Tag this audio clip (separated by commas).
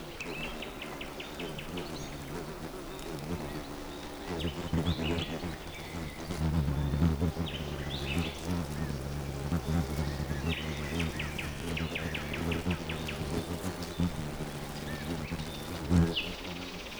Wild animals, Insect, Animal